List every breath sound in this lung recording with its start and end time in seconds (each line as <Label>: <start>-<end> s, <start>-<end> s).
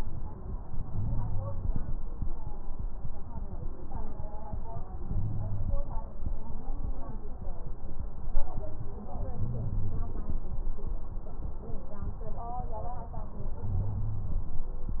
Wheeze: 0.89-1.65 s, 5.10-5.73 s, 9.42-10.14 s, 13.66-14.38 s